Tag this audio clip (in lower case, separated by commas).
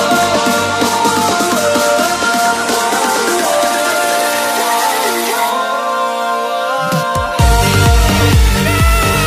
sampler, music